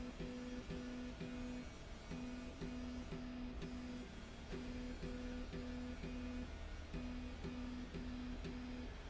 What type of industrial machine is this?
slide rail